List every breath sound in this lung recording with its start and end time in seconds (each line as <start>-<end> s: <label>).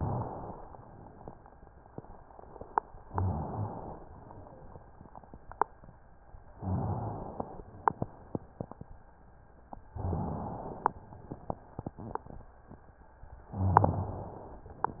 3.08-4.04 s: inhalation
3.08-3.81 s: rhonchi
6.58-7.54 s: inhalation
9.92-10.98 s: inhalation
13.52-14.06 s: crackles
13.52-14.58 s: inhalation